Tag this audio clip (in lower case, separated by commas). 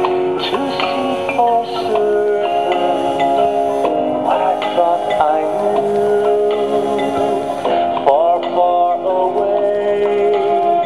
male singing, music